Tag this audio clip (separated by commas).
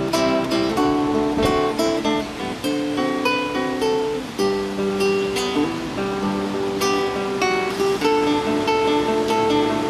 Acoustic guitar, Strum, Music, Guitar, Plucked string instrument, Musical instrument